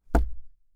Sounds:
Tap, thud

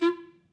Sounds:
Music, Wind instrument, Musical instrument

